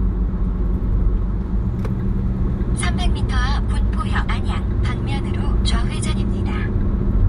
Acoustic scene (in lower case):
car